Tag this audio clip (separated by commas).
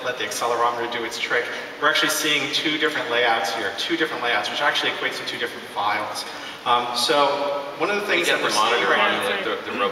Speech